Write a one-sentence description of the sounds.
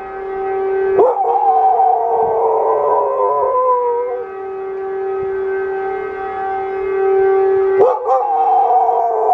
A wolf howls loudly while some sort of alarm blares